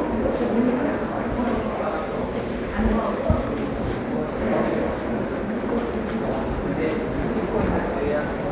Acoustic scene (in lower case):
subway station